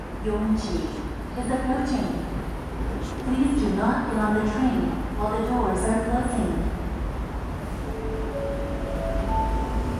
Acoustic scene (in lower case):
subway station